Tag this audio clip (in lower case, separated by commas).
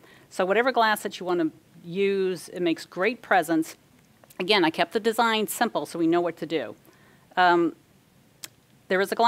speech